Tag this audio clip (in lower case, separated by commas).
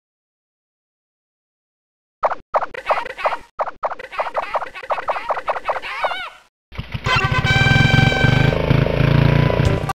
music, cluck